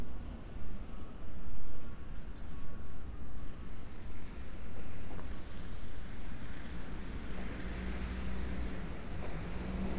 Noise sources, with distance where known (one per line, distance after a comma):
engine of unclear size